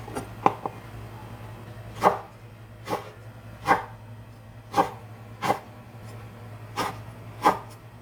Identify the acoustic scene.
kitchen